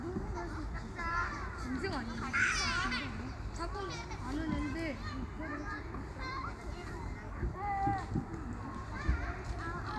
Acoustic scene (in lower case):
park